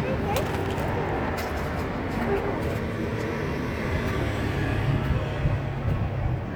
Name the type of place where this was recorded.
street